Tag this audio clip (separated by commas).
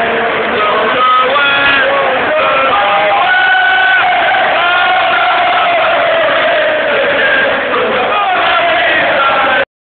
Male singing, Choir